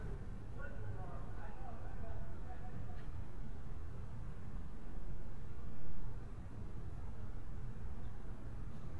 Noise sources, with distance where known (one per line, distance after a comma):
unidentified human voice, far